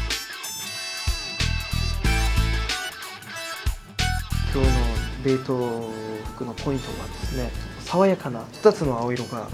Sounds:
music, speech

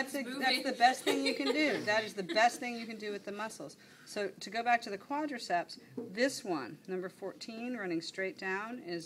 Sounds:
speech

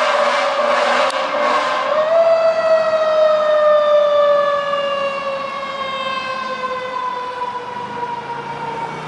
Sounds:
vehicle, fire truck (siren), car

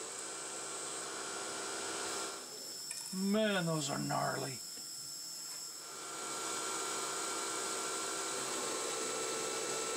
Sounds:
tools, speech

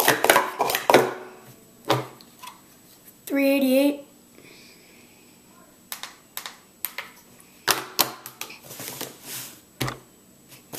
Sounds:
inside a small room, speech

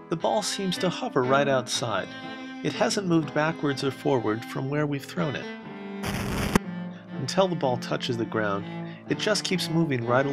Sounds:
music, speech

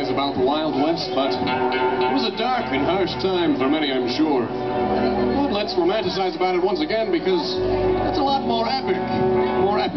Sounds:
speech, music

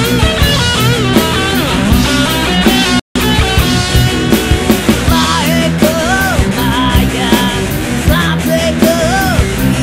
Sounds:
male singing, music

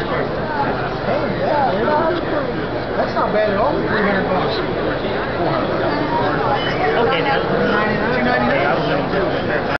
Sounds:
speech

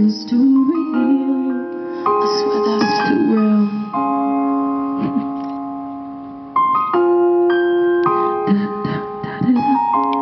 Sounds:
outside, urban or man-made, music

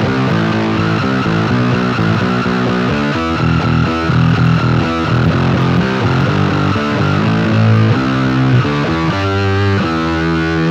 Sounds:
synthesizer, effects unit, guitar, musical instrument, distortion

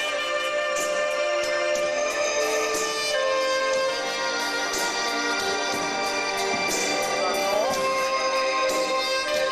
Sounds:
orchestra, music

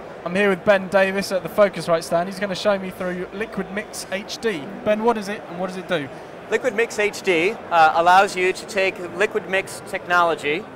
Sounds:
speech

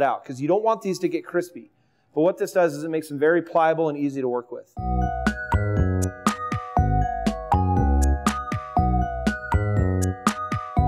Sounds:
speech, music

